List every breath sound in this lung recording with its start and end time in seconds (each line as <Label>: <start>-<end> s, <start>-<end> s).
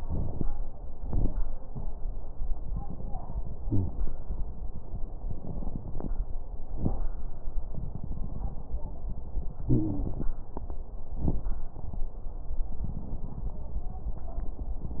Wheeze: 3.62-3.93 s, 9.68-10.18 s